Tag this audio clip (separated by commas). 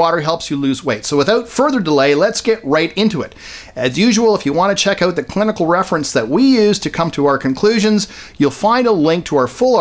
Speech